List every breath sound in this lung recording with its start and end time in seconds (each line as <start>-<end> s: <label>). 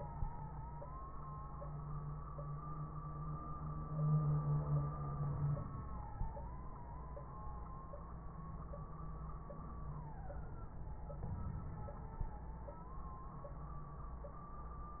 11.19-11.96 s: inhalation